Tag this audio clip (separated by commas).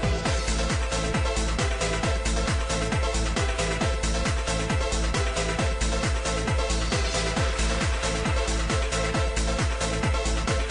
Music, Techno, Electronic music